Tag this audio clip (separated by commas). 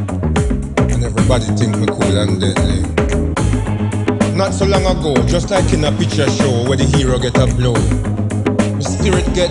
Music of Africa, Speech, Music